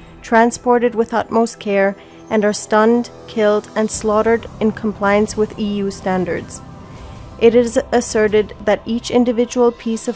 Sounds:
Speech, Music

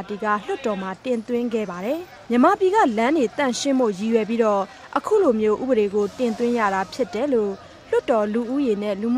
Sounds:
Speech

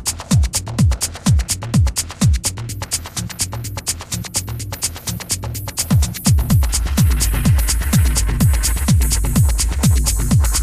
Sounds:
Electronic music, House music, Music

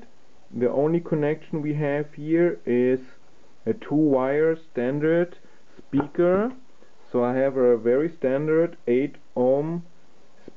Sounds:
Speech

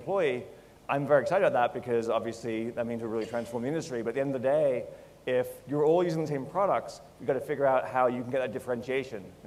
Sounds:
Speech

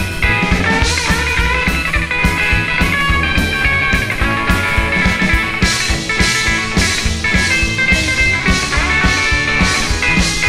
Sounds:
Drum, Drum kit, Music, Musical instrument, Rock and roll, Rock music, playing drum kit, Psychedelic rock

